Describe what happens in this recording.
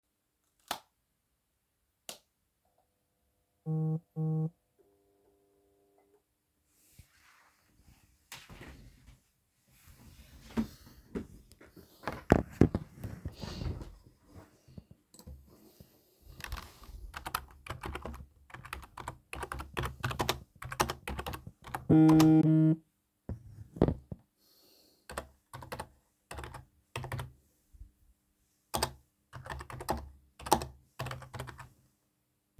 I switched on the light and sat at my desk. My phone rang and I typed on the keyboard.